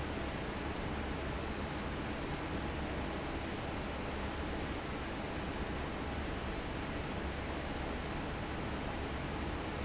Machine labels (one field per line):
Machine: fan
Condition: normal